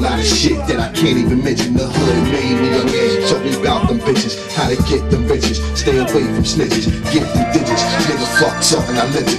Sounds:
music

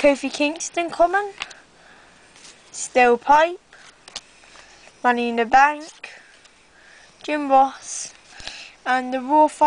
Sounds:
speech

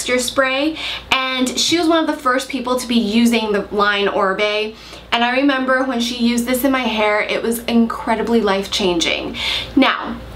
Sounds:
speech

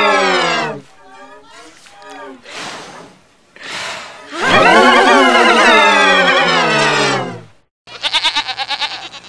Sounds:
music
bleat

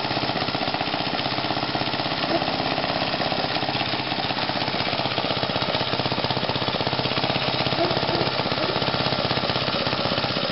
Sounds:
engine

